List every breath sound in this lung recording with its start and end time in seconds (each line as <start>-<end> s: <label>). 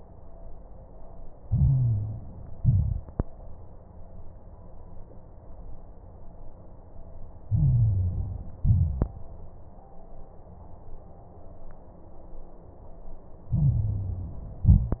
1.41-2.56 s: inhalation
1.41-2.56 s: crackles
2.60-3.15 s: exhalation
2.60-3.15 s: crackles
7.47-8.62 s: inhalation
7.47-8.62 s: crackles
8.63-9.18 s: exhalation
13.51-14.67 s: inhalation
13.51-14.67 s: crackles
14.65-15.00 s: exhalation
14.69-15.00 s: crackles